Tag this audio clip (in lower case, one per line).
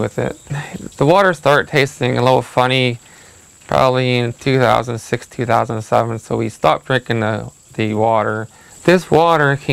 speech